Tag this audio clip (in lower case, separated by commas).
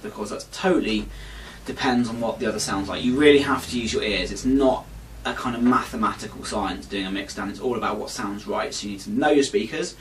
speech